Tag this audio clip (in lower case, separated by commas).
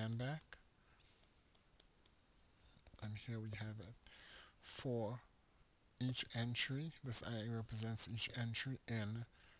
speech, inside a small room